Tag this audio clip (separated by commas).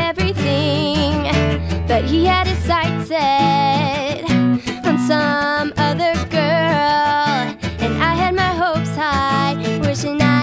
Music